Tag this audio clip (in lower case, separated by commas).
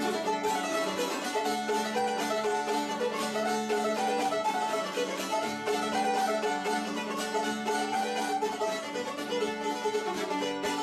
plucked string instrument, country, music, playing banjo, guitar, mandolin, musical instrument, banjo